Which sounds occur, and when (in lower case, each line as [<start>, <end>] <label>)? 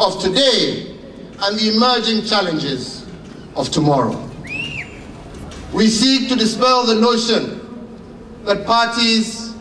[0.00, 0.94] man speaking
[0.00, 9.54] monologue
[0.00, 9.60] mechanisms
[1.30, 3.06] man speaking
[3.15, 3.38] generic impact sounds
[3.52, 4.28] man speaking
[4.04, 4.22] generic impact sounds
[4.42, 4.55] tick
[4.44, 4.97] whistling
[5.29, 5.59] generic impact sounds
[5.32, 5.74] human voice
[5.72, 7.70] man speaking
[7.92, 8.06] generic impact sounds
[8.45, 9.59] man speaking